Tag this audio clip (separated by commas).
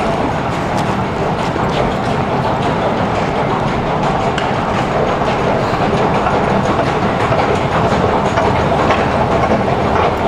metro